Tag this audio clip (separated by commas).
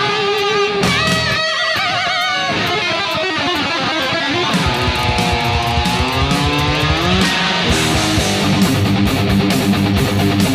Music, Musical instrument, Electric guitar, Guitar, Plucked string instrument